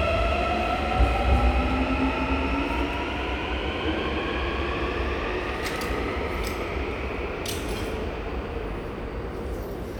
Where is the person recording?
in a subway station